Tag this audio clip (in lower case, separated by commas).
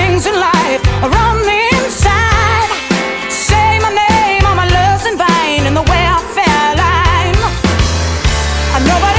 pop music, music